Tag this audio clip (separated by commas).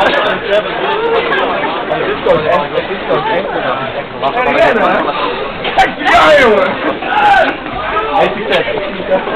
Speech